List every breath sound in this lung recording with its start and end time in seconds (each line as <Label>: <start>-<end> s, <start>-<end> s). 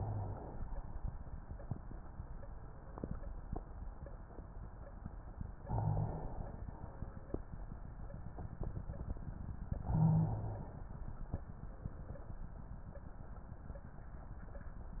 Inhalation: 0.00-0.65 s, 5.59-6.68 s, 9.71-10.88 s
Exhalation: 6.68-7.33 s